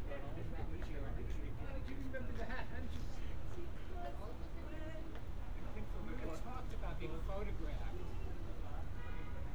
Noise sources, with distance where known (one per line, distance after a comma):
unidentified human voice, near